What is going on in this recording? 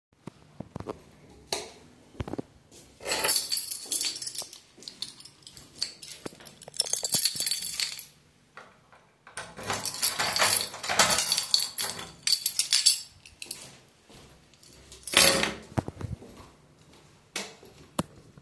I walked to the apartment door, turned on the light, locked the door using my key and then went back and turned off the light.